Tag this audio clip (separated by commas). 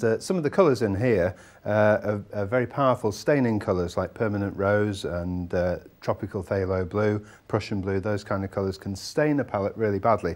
Speech